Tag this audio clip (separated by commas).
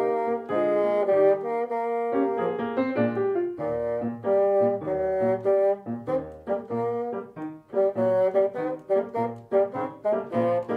playing bassoon